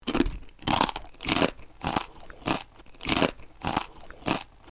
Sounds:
mastication

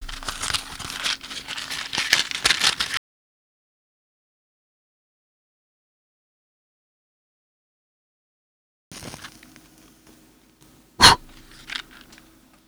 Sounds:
fire

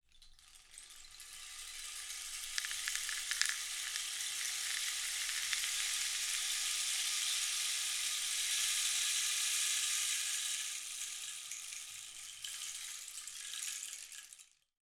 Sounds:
percussion
musical instrument
rattle (instrument)
music

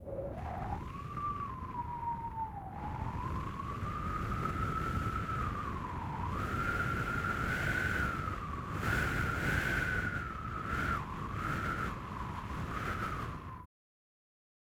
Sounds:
wind

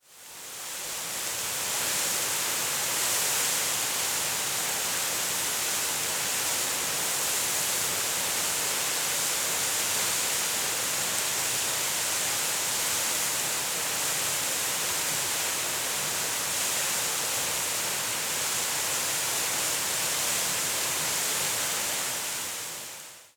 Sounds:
water

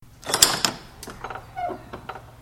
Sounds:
squeak

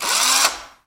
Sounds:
drill
tools
power tool

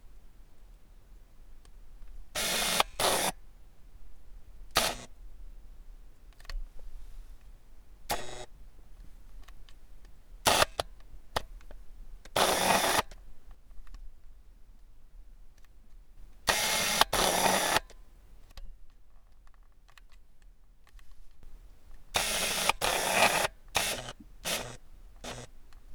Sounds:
camera
mechanisms

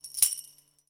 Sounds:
musical instrument
music
percussion
tambourine

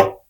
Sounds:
tap

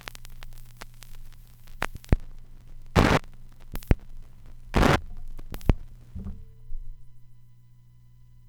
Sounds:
crackle

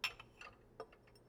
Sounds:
clink
domestic sounds
dishes, pots and pans
glass

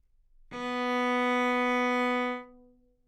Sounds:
music
musical instrument
bowed string instrument

